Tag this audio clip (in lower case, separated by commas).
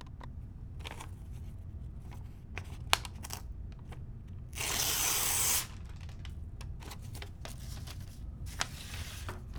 tearing